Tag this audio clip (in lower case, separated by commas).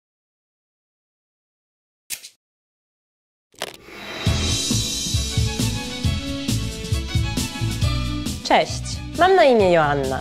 inside a small room, speech, music